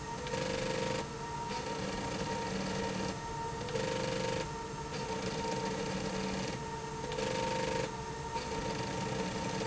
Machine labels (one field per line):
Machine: slide rail